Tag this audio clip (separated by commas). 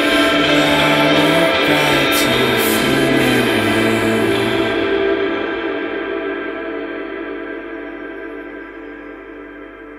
Gong